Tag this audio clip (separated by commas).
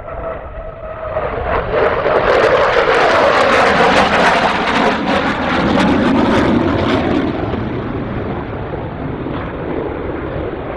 airplane flyby